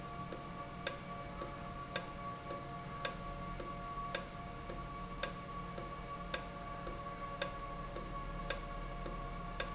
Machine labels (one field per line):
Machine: valve